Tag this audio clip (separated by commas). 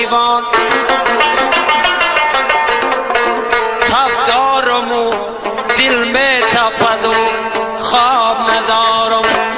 Music